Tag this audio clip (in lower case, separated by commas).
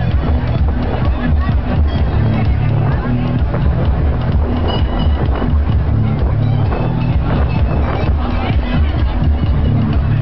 vehicle, speech, speedboat, music